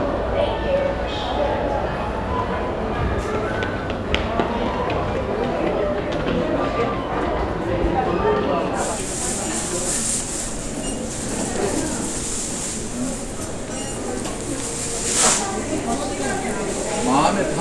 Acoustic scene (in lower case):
crowded indoor space